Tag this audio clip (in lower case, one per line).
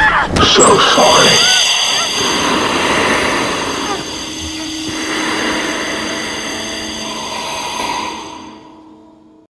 speech